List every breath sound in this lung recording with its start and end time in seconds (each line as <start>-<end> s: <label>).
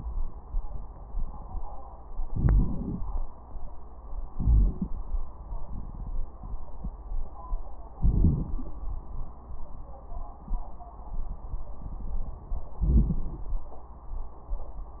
2.23-3.00 s: inhalation
2.23-3.00 s: crackles
4.31-5.06 s: inhalation
4.31-5.06 s: crackles
7.90-8.76 s: inhalation
7.90-8.76 s: crackles
12.78-13.64 s: inhalation
12.78-13.64 s: crackles